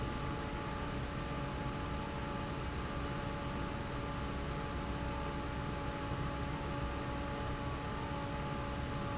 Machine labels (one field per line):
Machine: fan